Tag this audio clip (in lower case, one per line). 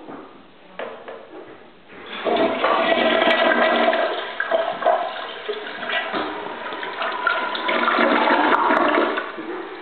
toilet flushing
toilet flush
inside a small room